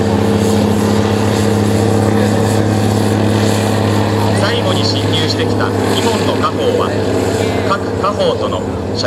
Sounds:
speech
outside, urban or man-made

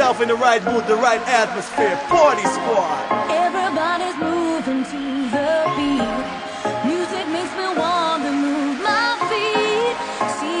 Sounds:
music
crowd
speech
sound effect

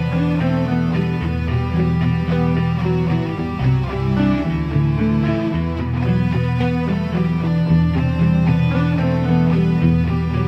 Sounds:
music

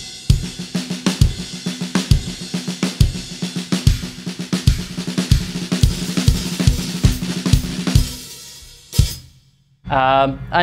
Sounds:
playing snare drum

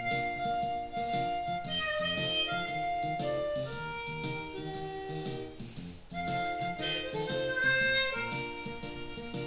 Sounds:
blues
music

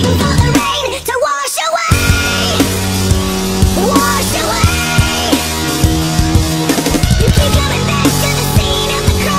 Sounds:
music

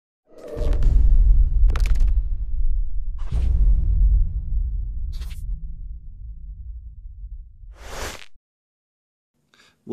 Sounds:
speech
swoosh
music

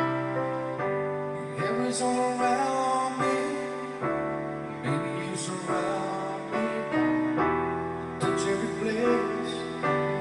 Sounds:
music
male singing

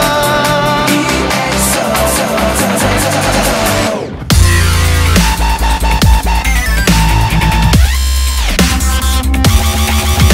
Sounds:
dubstep
music

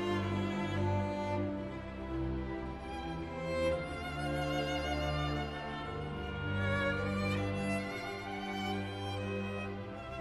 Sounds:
bowed string instrument
cello
fiddle

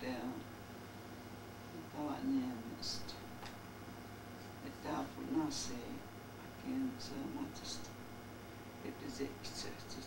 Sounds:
speech

